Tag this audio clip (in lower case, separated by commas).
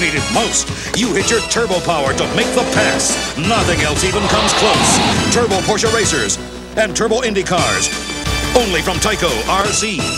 speech, music, car